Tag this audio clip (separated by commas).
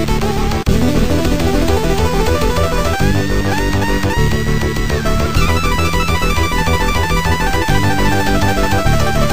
Cacophony, Music